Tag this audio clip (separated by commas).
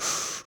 Respiratory sounds, Breathing